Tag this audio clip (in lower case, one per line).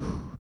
respiratory sounds
breathing